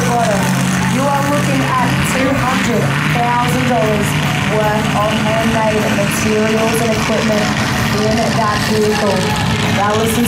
A woman speaking over an engine running